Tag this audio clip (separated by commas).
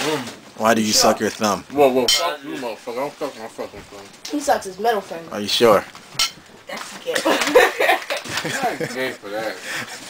Speech